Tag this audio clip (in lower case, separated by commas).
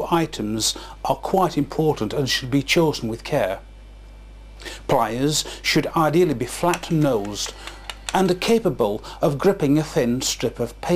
speech